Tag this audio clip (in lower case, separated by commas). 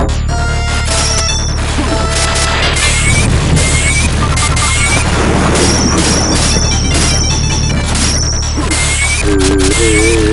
music